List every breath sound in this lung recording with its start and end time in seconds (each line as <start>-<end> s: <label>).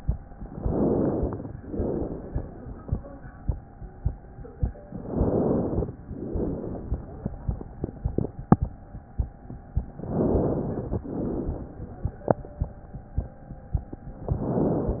0.40-1.41 s: inhalation
1.65-2.99 s: exhalation
4.92-5.94 s: inhalation
6.14-7.67 s: exhalation
9.96-11.04 s: inhalation
11.08-12.39 s: exhalation
14.25-15.00 s: inhalation